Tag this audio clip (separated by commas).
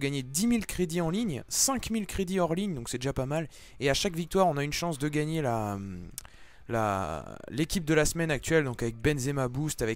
Speech